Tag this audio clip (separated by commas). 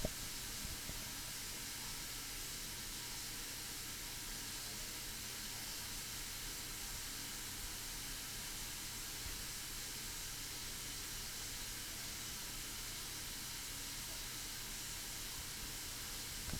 Domestic sounds, faucet